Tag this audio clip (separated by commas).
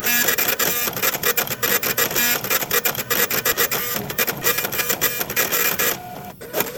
Mechanisms, Printer